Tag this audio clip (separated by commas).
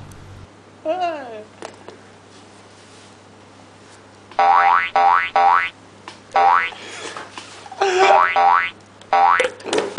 inside a small room